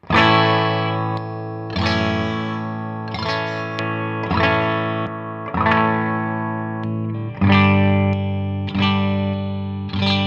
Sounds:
effects unit
musical instrument
music
distortion
plucked string instrument
electric guitar
guitar

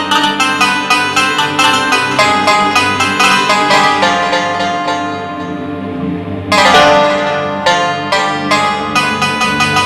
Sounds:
music
musical instrument

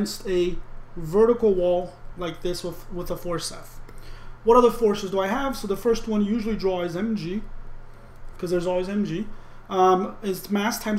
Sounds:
speech

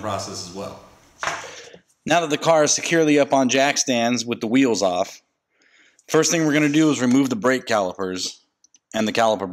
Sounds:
speech

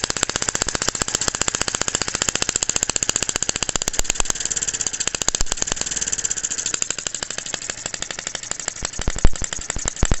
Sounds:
engine
idling

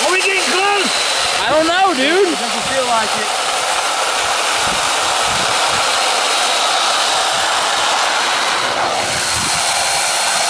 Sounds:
outside, rural or natural
speech

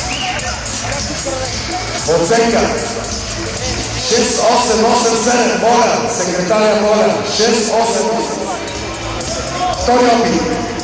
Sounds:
speech
music

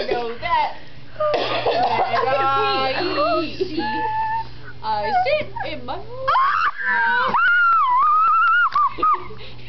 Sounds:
female singing
speech

